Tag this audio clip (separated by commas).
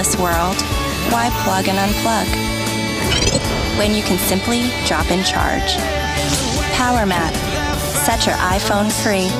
Music, Speech